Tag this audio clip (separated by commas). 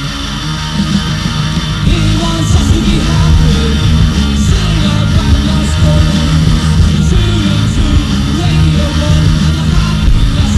Punk rock, Music